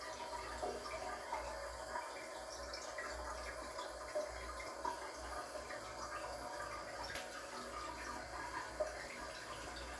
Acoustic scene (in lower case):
restroom